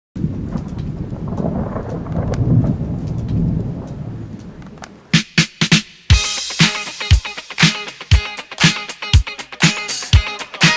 Thunderstorm followed by a symbol and drums playing